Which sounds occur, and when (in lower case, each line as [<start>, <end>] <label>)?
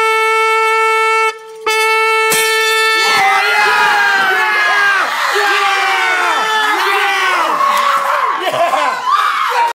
[0.00, 6.83] music
[1.32, 1.64] glass
[2.30, 2.75] shatter
[2.96, 9.74] shout
[7.73, 7.87] tick